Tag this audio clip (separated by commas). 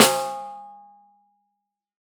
Percussion, Musical instrument, Snare drum, Music, Drum